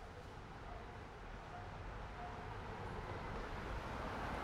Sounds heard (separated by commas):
car, car wheels rolling